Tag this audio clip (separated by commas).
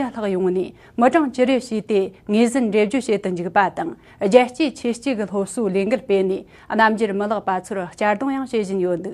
Speech